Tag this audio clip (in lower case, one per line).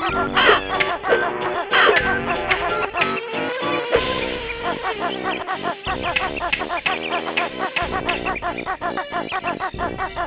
music